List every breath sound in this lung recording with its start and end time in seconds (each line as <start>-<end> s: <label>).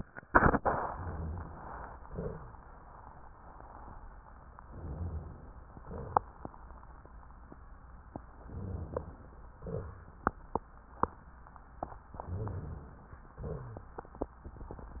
0.92-2.01 s: inhalation
2.02-2.75 s: exhalation
2.02-2.75 s: rhonchi
4.64-5.56 s: inhalation
5.68-6.53 s: exhalation
8.29-9.50 s: inhalation
9.56-10.37 s: exhalation
9.56-10.37 s: rhonchi
12.16-13.26 s: inhalation
12.22-12.98 s: rhonchi
13.34-13.89 s: rhonchi
13.40-14.21 s: exhalation